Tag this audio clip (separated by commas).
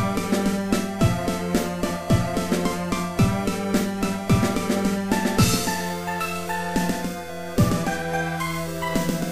Video game music, Music, Soundtrack music, Theme music